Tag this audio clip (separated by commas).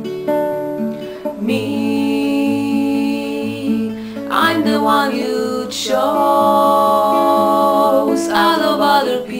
Strum, Musical instrument, Music, Acoustic guitar, Plucked string instrument, Guitar